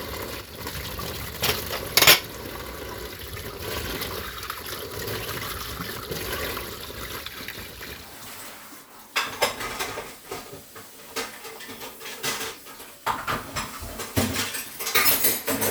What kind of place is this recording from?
kitchen